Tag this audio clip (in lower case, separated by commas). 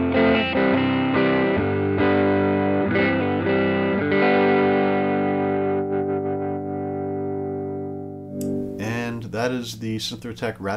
speech, musical instrument, guitar, effects unit, plucked string instrument, distortion, music